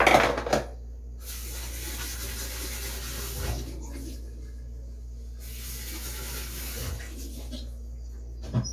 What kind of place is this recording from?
kitchen